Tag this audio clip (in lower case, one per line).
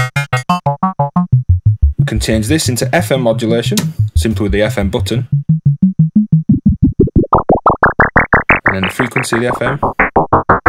music
synthesizer
speech